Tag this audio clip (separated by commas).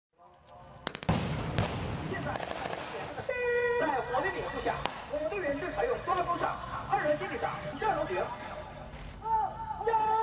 Speech, outside, rural or natural, Firecracker